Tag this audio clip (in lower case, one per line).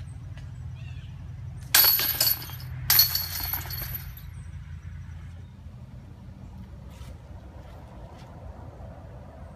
outside, rural or natural